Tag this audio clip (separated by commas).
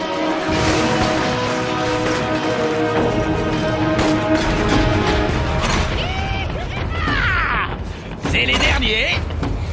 Music, Speech